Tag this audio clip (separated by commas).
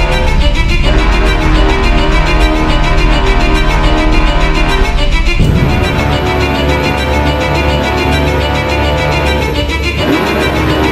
Music